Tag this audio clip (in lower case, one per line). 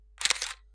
mechanisms
camera